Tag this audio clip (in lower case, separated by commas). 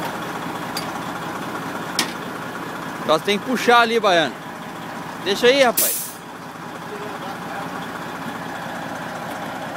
truck, speech, vehicle